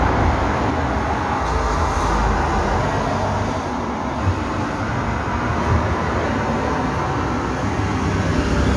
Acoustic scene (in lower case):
street